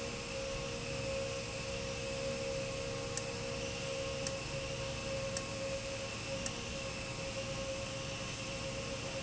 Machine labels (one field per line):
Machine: valve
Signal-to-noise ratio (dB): -6 dB